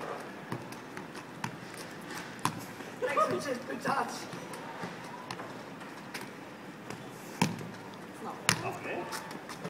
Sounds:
speech
dribble

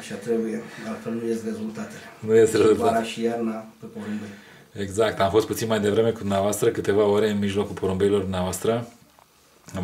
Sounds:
speech

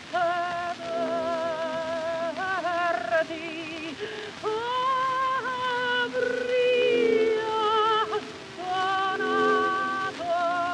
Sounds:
fiddle
musical instrument
music

